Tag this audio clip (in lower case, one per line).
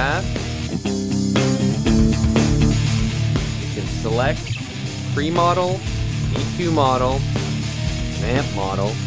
music
speech